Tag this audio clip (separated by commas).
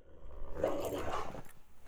Domestic animals, Dog, Animal